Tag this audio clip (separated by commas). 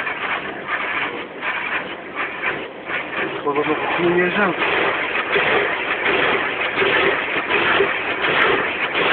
Speech